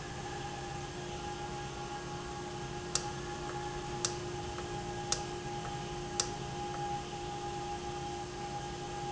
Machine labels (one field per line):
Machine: valve